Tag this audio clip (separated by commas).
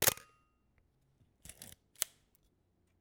Camera, Mechanisms